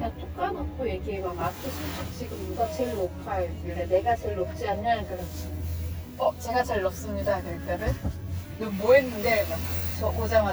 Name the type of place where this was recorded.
car